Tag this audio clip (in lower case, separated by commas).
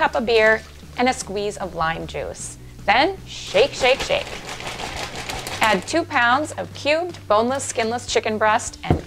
speech, music